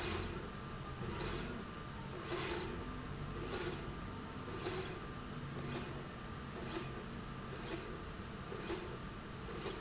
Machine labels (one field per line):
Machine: slide rail